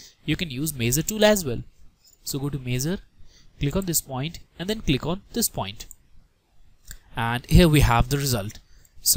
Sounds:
inside a small room
speech
clicking

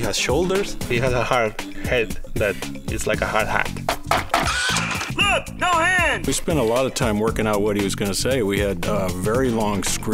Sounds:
speech
music

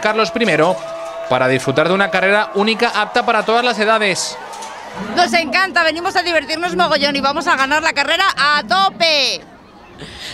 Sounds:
speech

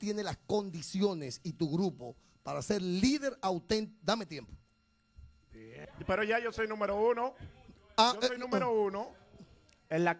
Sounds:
speech

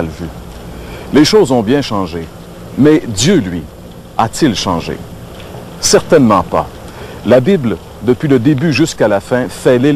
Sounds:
speech

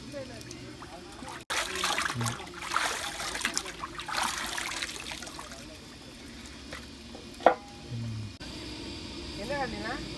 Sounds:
speech

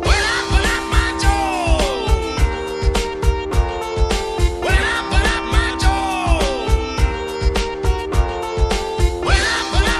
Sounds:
music

